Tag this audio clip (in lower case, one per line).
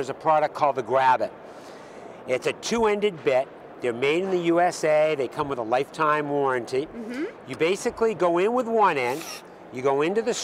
speech